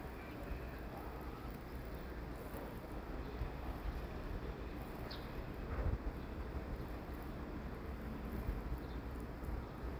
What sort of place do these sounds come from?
residential area